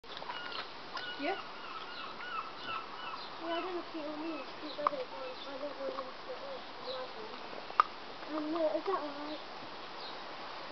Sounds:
pets, Animal, Speech, Dog, canids, outside, rural or natural

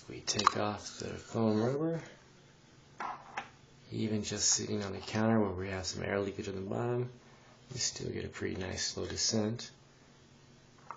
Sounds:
Speech

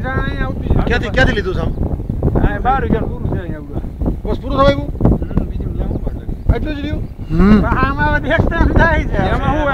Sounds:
Speech

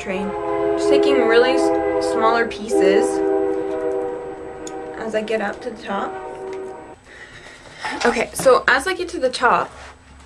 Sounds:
Train horn

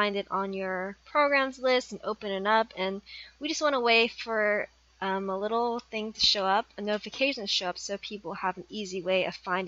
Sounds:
Speech

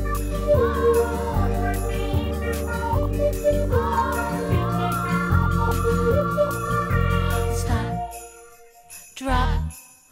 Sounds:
Jingle bell

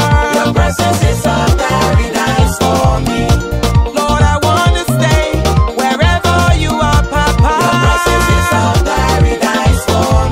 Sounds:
Music, Gospel music

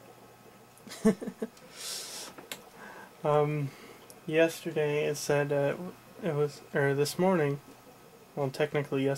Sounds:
Speech

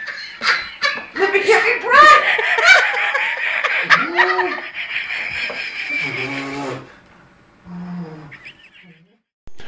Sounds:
Speech, inside a small room

